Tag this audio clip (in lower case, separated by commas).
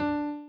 musical instrument, keyboard (musical), piano, music